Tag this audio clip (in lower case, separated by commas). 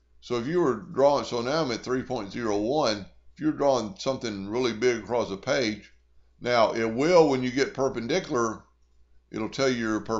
speech